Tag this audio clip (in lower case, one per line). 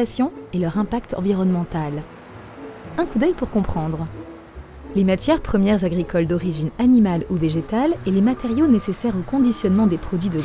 music
speech